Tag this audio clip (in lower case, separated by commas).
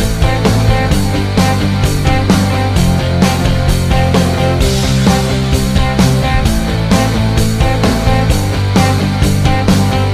music